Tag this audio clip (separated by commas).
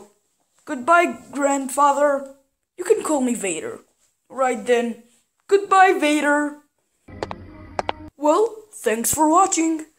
Speech